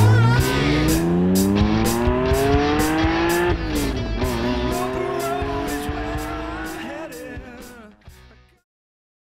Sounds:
vehicle
medium engine (mid frequency)
car
revving
music
engine

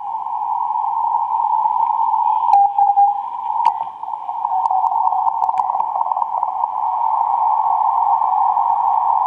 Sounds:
radio

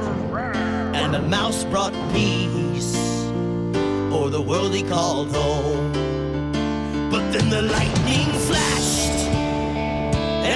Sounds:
music

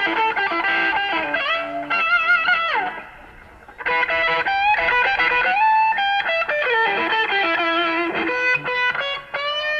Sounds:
blues
music

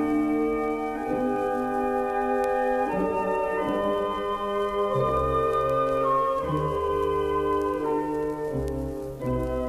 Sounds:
music
fiddle
musical instrument

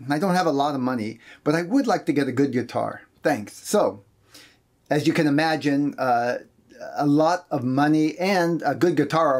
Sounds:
speech

